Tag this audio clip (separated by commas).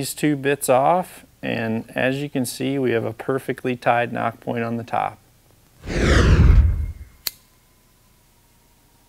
swish